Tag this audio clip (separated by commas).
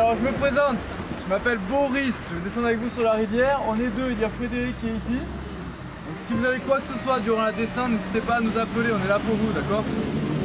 Music, Speech